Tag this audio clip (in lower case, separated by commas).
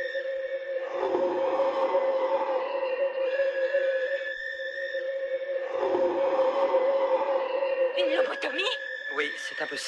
music, speech